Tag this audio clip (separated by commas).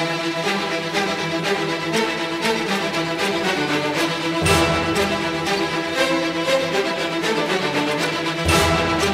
Music